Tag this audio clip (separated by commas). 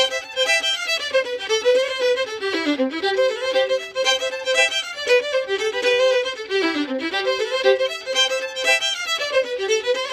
Violin, Musical instrument, Music